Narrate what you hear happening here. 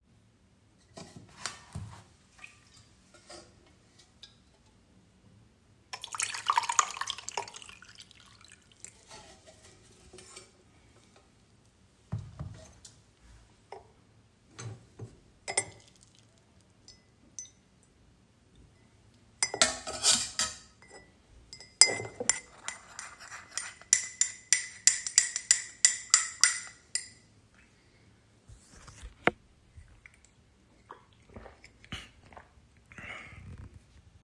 I pour tee in my cup. I open honey jar, I put honey in my cup, I close the honey jar. I stur the tee. Then I drink from the cup.